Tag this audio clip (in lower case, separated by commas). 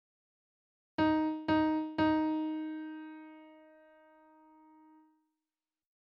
piano, musical instrument, keyboard (musical), music